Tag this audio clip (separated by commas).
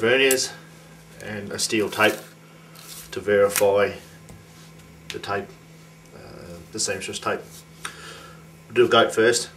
Speech